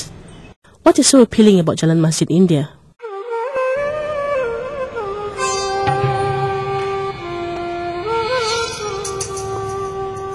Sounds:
Sitar

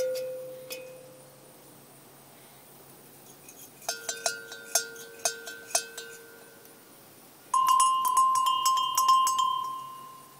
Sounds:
bovinae cowbell

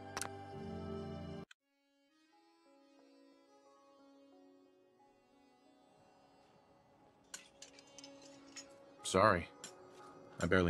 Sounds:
monologue, Speech, Male speech

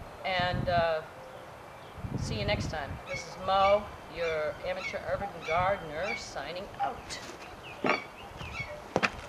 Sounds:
outside, rural or natural, Speech

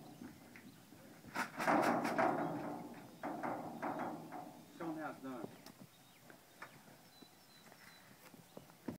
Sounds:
Speech

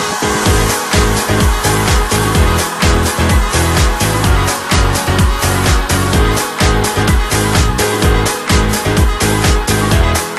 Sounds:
Music

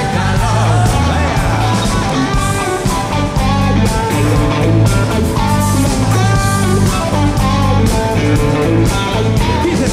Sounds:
Music

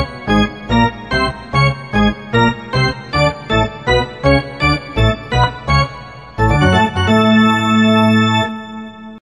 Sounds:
Music, Sound effect

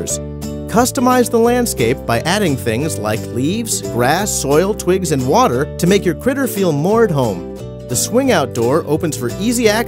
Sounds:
Speech, Music

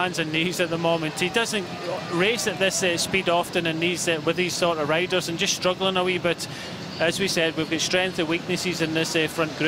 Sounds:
Speech

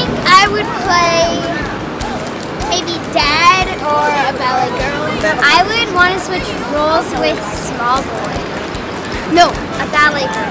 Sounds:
Music, Speech

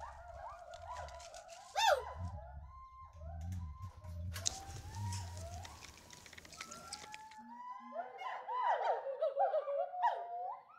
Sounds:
gibbon howling

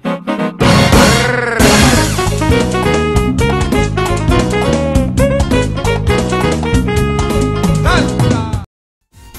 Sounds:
Music, Salsa music

